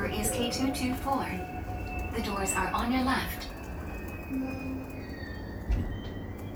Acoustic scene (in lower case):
subway train